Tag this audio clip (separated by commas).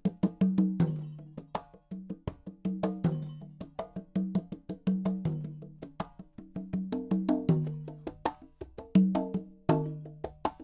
Drum, Percussion